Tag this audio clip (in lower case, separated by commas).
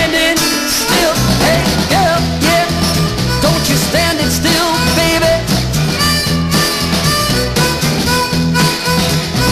music, swing music